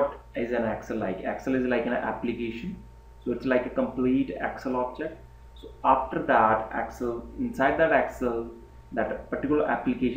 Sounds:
Speech

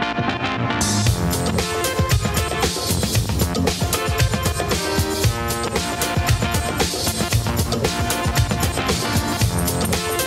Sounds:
Music

